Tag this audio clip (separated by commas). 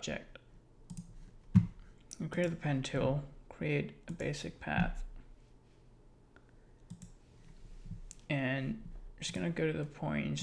Speech